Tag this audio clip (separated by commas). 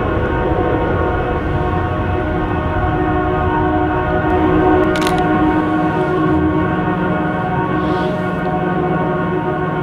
truck horn, outside, rural or natural